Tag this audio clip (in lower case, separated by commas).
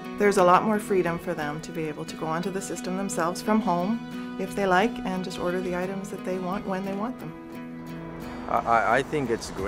music, speech